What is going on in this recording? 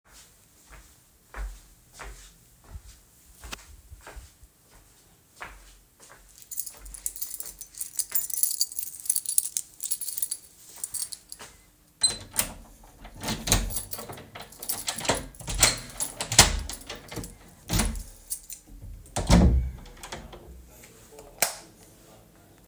I was walking to the door, took my keychain, opened the door, turned the light on and closed the door